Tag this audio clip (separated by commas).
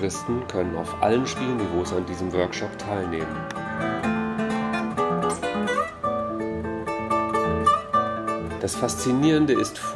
Guitar, Speech, Musical instrument, Music, Plucked string instrument